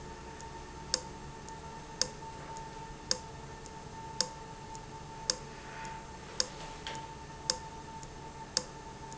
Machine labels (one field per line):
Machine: valve